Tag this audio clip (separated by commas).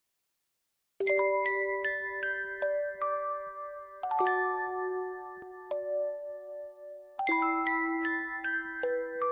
Music, clink